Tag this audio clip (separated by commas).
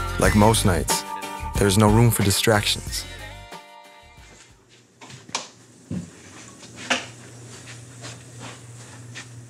Music, inside a small room, Speech